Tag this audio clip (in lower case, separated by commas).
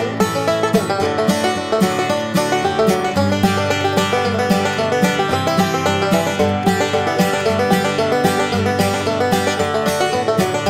music